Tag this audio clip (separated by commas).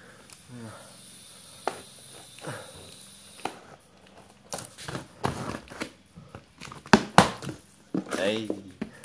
Speech